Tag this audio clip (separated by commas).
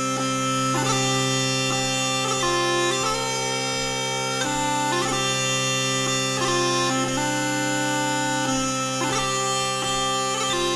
playing bagpipes